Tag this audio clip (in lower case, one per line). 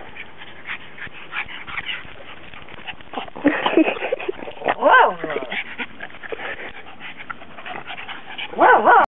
dog
pets
animal